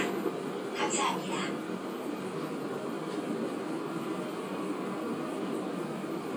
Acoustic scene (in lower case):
subway train